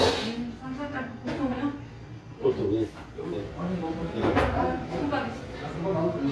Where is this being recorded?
in a restaurant